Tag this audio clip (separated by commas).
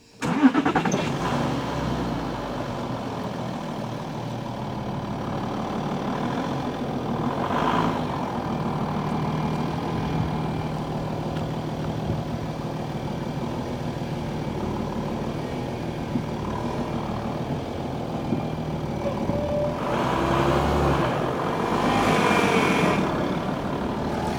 Engine starting, Engine